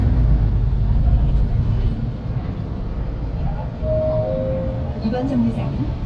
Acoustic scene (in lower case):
bus